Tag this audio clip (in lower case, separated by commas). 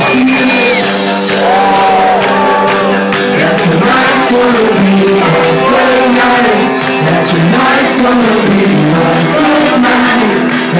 male singing, music